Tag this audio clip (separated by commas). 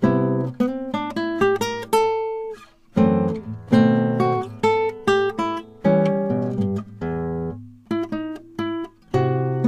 Plucked string instrument, Musical instrument, Music, Strum, Guitar, Acoustic guitar